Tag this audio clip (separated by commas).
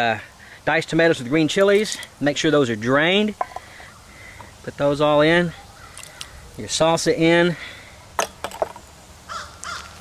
outside, rural or natural, Speech